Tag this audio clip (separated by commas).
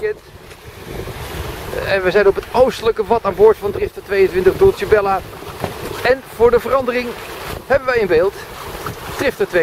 Boat, Wind, surf, Wind noise (microphone), sailing ship, Ocean